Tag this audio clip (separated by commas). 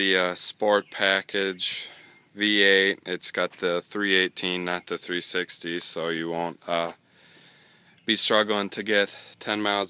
Speech